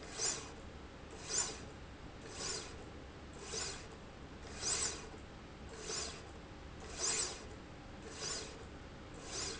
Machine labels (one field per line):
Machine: slide rail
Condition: normal